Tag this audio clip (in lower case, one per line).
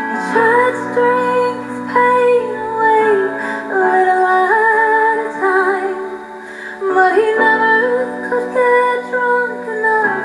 music